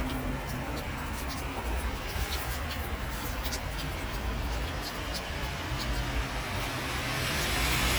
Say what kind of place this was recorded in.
street